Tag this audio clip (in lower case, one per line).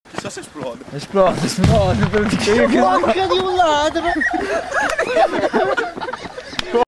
speech